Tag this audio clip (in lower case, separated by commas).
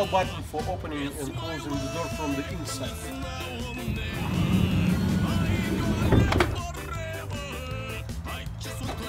door, music, vehicle, speech, sliding door